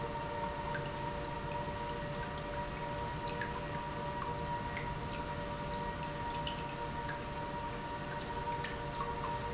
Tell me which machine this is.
pump